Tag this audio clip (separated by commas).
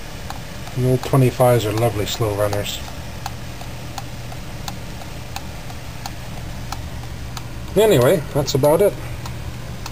Engine, Speech